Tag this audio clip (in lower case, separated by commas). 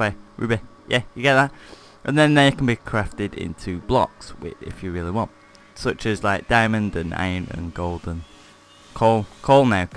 speech, music